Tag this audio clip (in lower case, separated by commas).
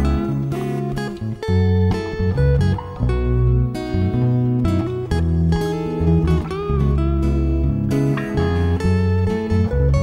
music